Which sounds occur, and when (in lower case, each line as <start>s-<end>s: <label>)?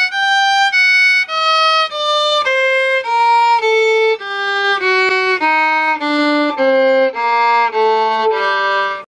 0.0s-9.0s: background noise
0.0s-9.0s: music